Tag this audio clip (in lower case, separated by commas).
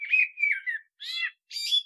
animal, bird, wild animals